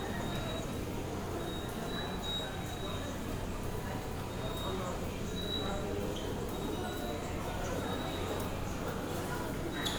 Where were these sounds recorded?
in a subway station